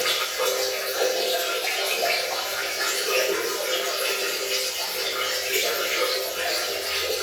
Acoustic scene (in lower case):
restroom